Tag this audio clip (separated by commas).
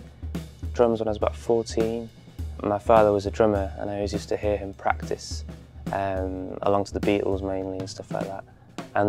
Music, Speech